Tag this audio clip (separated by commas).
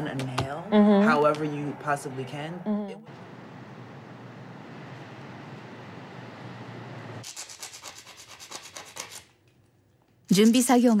Rub, Filing (rasp)